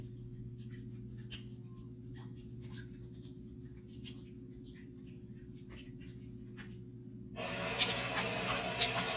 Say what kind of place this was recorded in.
restroom